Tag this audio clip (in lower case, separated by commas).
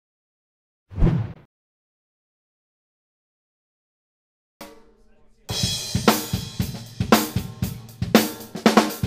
drum kit, cymbal, music